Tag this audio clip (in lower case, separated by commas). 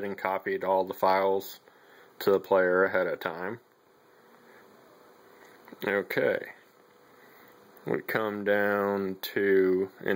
speech, inside a small room